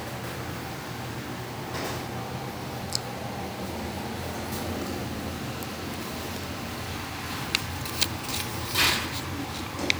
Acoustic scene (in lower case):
restaurant